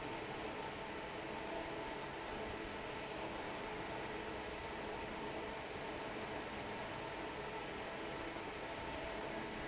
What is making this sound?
fan